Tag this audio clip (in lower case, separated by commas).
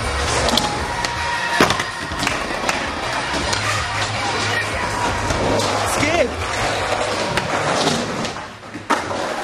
skateboarding, speech, skateboard